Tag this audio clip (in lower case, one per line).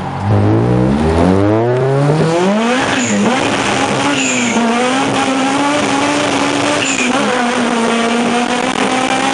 swoosh
car
vehicle
accelerating